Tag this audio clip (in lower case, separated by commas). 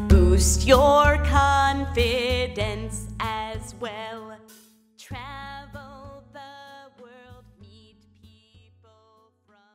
music, female singing